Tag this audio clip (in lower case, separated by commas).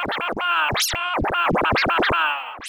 music, scratching (performance technique), musical instrument